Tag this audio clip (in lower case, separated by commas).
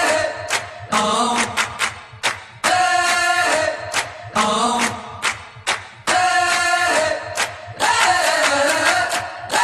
music